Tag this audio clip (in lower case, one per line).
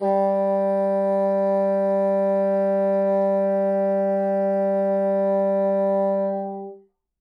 musical instrument
music
wind instrument